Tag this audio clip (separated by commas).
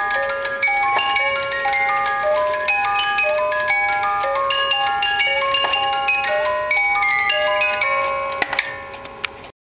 Music